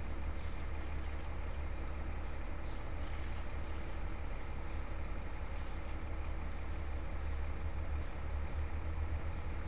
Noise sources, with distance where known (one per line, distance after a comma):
large-sounding engine, far